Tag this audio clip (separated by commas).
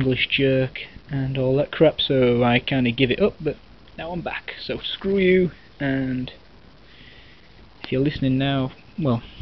Speech